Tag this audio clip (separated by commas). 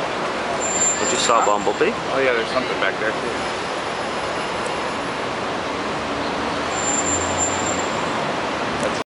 Truck, Vehicle, Speech